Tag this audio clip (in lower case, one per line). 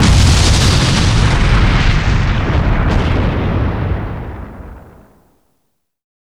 explosion